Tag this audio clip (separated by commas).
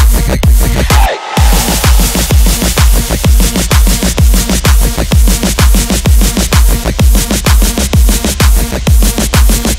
Electronic dance music, Music